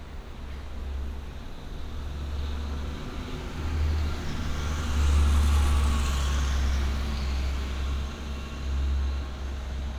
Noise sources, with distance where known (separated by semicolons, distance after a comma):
engine of unclear size, near